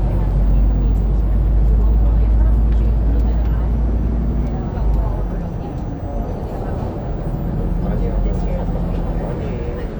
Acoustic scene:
bus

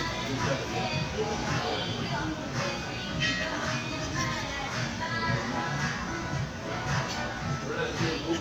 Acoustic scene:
crowded indoor space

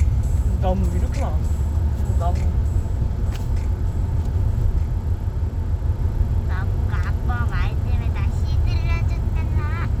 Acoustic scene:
car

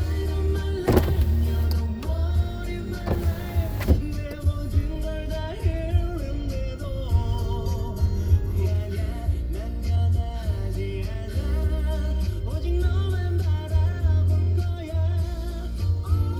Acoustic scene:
car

